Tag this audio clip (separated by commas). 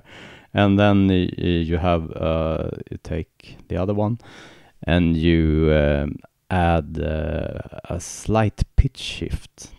Speech, monologue